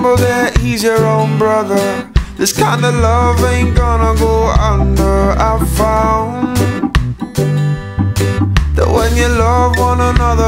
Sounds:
music

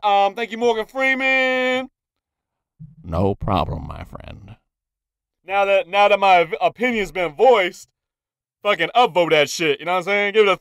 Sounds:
speech

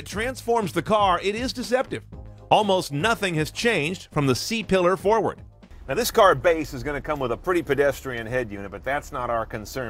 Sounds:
speech, music

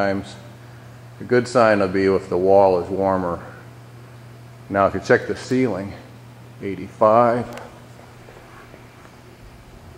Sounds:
speech

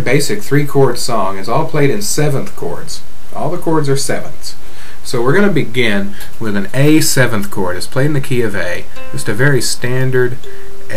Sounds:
speech, music

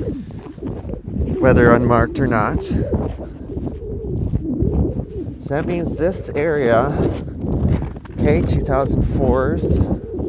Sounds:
outside, rural or natural, speech

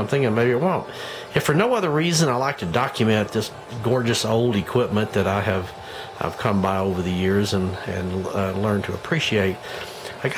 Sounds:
speech

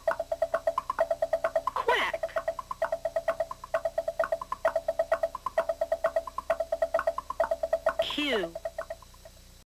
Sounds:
music, speech

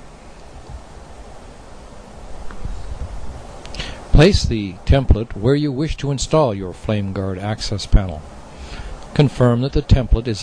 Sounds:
speech

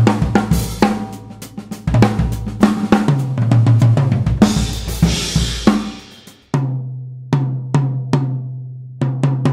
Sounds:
music, cymbal

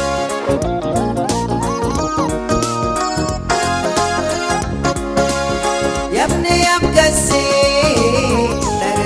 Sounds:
music

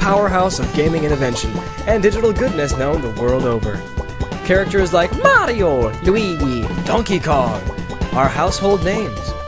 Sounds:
music, speech

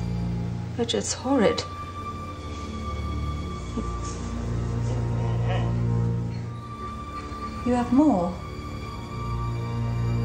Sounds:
speech, music

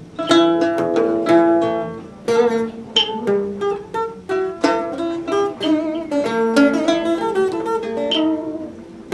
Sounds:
music

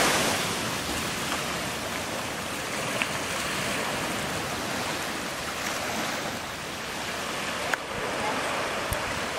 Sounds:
ocean burbling, outside, rural or natural, ocean

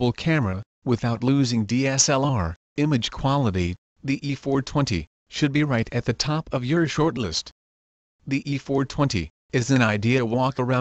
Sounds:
speech

